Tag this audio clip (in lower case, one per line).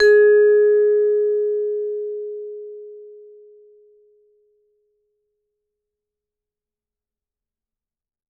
music
percussion
musical instrument
mallet percussion